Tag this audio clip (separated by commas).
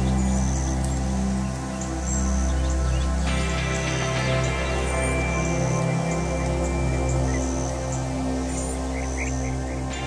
Music